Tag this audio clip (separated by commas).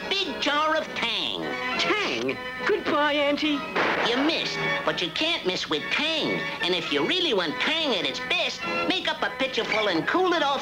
Music, Speech